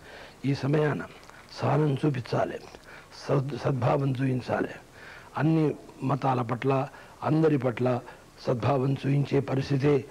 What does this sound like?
A man is speaking in a foreign language